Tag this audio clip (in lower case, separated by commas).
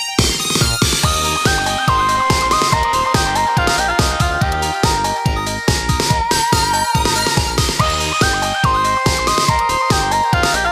sound effect, music